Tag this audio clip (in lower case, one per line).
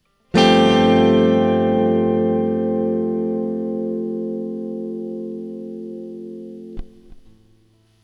musical instrument
plucked string instrument
music
guitar